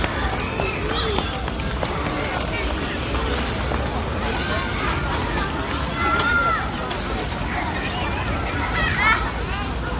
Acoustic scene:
park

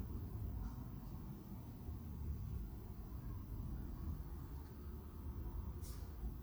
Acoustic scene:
residential area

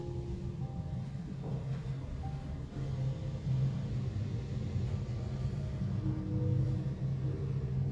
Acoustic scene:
elevator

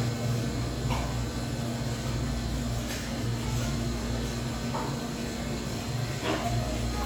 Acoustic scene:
cafe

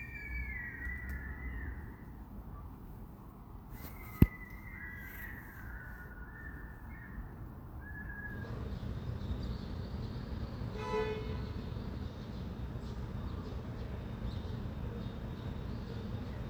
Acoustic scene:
residential area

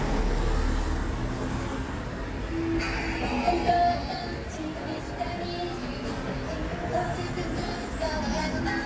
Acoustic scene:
street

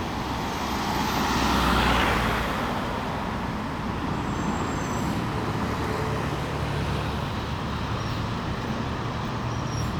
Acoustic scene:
street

